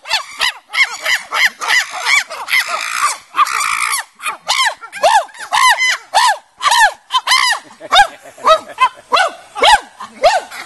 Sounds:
chimpanzee pant-hooting

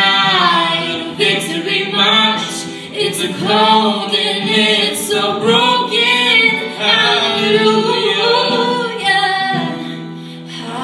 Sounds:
singing
inside a large room or hall
female singing
music

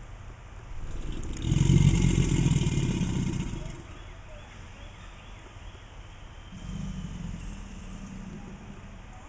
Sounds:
alligators

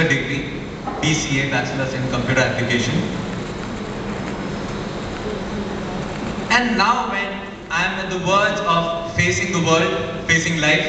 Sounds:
speech
narration
male speech

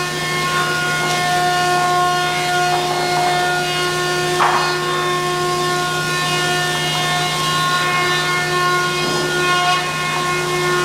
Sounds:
planing timber

